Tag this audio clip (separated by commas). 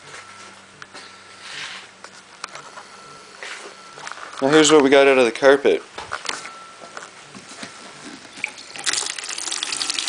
Speech